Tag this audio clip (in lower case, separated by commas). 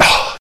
respiratory sounds, breathing